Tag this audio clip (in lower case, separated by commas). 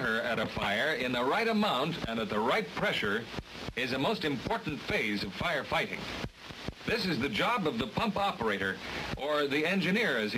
speech